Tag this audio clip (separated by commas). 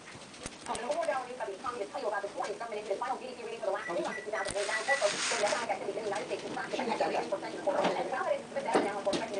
Speech